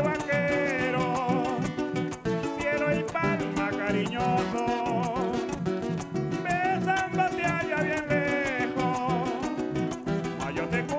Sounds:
Music, Soul music

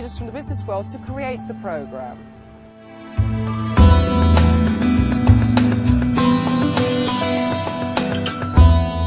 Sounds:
Music, Speech, Harpsichord

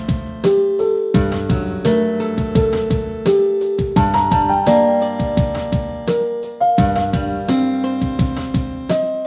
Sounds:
Music

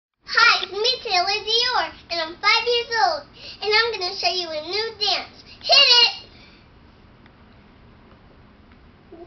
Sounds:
Child speech

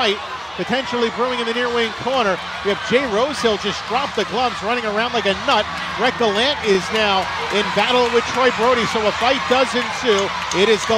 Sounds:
Speech

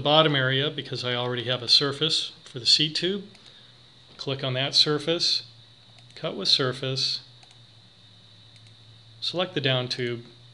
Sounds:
Speech

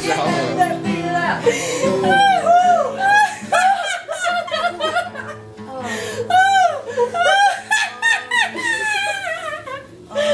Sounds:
Music, Snicker, Speech, people sniggering

